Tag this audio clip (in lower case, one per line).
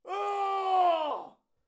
screaming
human voice
shout